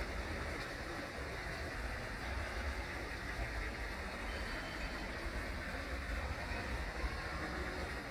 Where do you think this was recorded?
in a park